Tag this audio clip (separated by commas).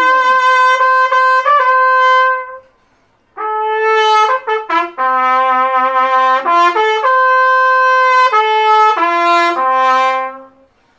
playing bugle